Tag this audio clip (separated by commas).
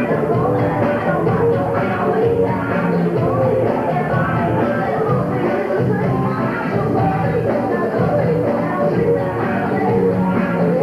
Music